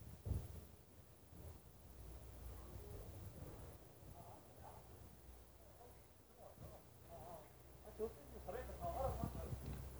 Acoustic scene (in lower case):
residential area